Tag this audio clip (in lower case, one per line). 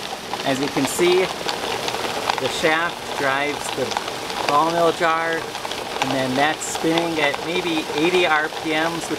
speech